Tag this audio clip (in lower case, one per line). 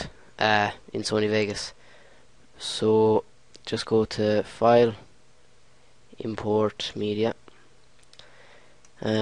speech